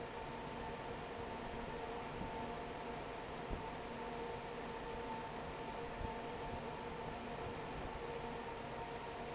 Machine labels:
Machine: fan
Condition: normal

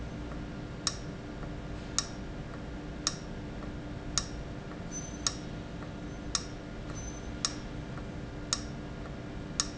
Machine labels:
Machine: valve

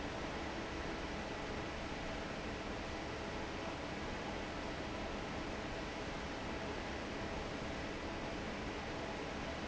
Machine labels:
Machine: fan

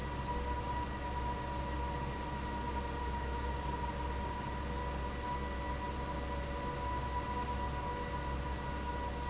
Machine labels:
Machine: fan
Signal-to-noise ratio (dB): -6 dB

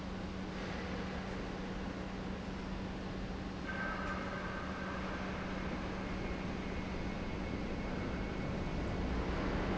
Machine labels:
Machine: pump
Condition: normal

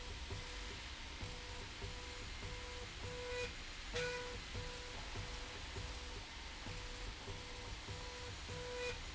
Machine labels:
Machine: slide rail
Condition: normal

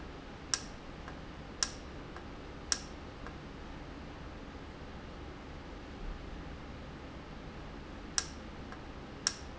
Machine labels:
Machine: valve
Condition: normal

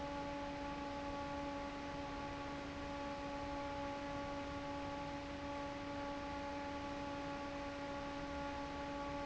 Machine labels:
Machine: fan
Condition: normal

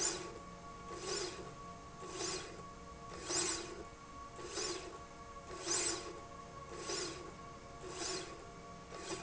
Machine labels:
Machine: slide rail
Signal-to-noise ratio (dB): 6 dB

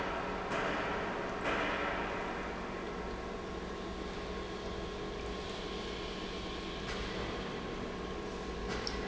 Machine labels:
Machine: pump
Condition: normal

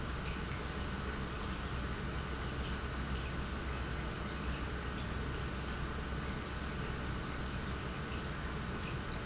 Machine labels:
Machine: pump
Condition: normal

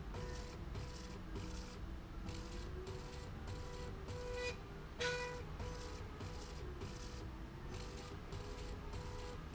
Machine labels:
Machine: slide rail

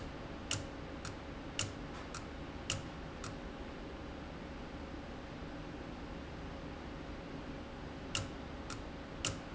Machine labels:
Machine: valve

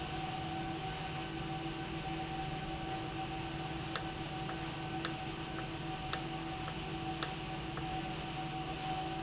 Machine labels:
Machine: valve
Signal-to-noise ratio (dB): -6 dB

